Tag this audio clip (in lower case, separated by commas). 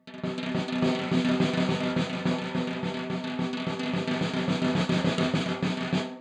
musical instrument, percussion, snare drum, drum, music